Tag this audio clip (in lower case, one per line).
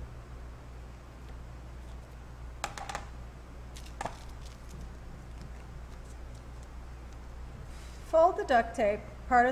speech